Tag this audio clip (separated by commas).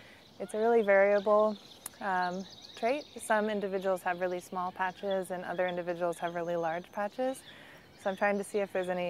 Animal, Speech